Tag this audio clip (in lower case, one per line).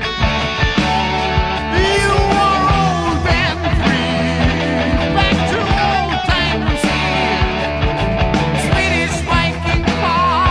music